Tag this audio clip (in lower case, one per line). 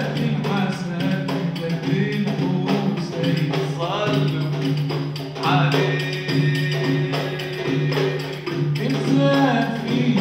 music